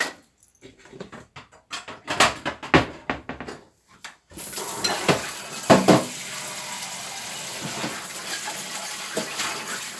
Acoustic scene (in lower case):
kitchen